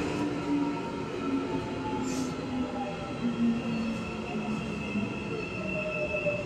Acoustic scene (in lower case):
subway train